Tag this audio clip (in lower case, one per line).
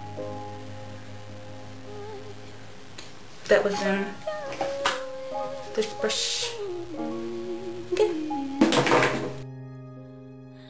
inside a small room
music
speech